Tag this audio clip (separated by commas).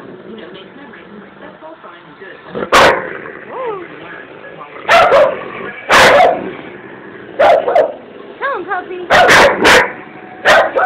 Yip, Speech